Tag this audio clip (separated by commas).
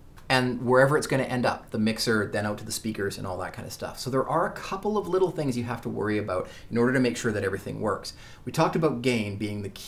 Speech